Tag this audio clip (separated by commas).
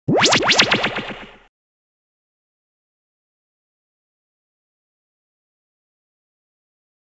Sound effect